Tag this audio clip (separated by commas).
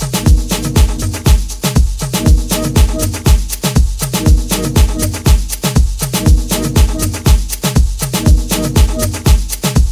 Music, Disco